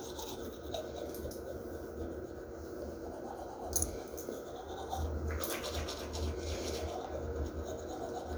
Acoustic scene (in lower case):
restroom